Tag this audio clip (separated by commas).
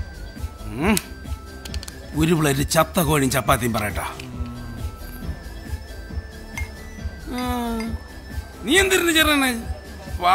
Music, Speech